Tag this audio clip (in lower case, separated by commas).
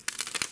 crack